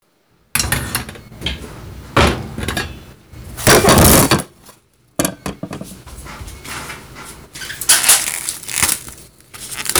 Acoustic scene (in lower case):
kitchen